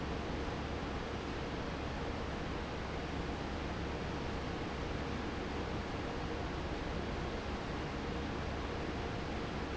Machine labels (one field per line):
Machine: fan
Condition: normal